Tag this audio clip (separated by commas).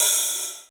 Cymbal, Hi-hat, Music, Musical instrument, Percussion